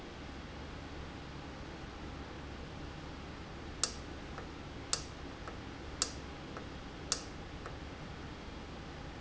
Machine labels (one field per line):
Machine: valve